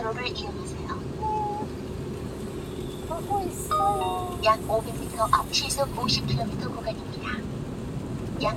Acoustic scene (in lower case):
car